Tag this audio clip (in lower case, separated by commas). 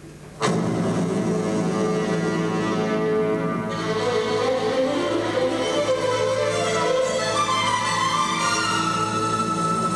orchestra